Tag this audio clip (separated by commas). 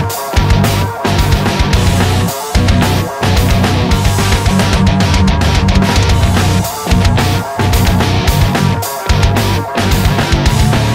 Music